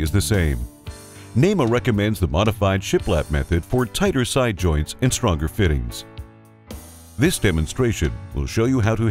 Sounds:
Speech, Music

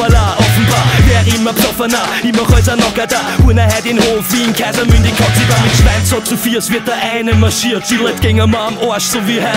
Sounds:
Music

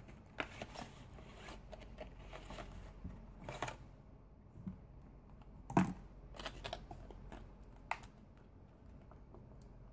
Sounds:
inside a small room

